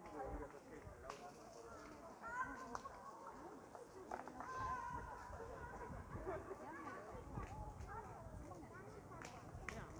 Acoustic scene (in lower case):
park